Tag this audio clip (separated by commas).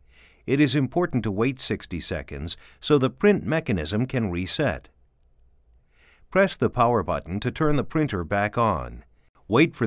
Speech